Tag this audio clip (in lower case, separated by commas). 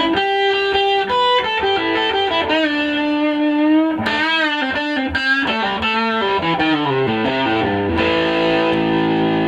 plucked string instrument, music, electric guitar, guitar, musical instrument